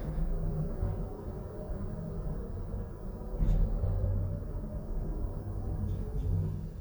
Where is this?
in an elevator